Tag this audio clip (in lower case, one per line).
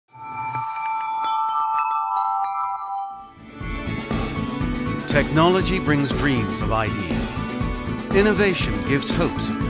glockenspiel
marimba
mallet percussion